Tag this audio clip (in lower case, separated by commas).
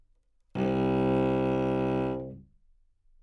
music, musical instrument, bowed string instrument